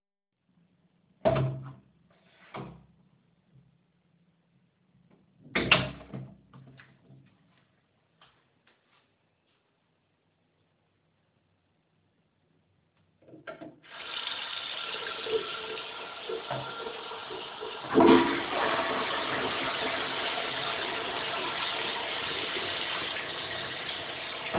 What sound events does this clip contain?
door, footsteps, running water, toilet flushing